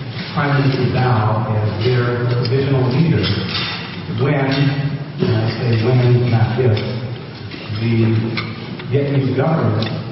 He is giving a speech